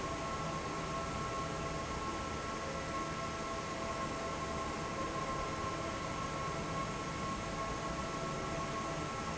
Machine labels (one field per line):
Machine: fan